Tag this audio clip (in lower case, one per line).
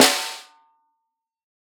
percussion
musical instrument
drum
snare drum
music